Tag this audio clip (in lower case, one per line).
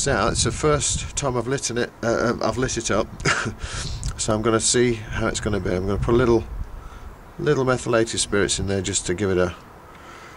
speech